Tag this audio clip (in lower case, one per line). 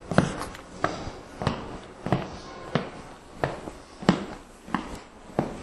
alarm
walk
siren